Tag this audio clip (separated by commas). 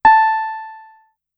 Music, Musical instrument, Piano, Keyboard (musical)